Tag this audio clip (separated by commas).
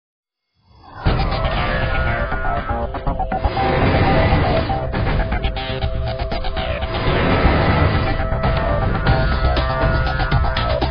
Music